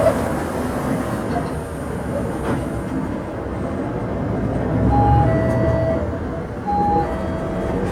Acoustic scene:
bus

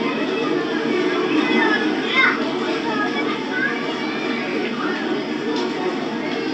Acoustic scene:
park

